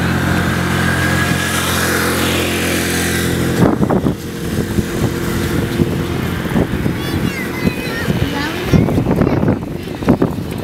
An engine running, wind blowing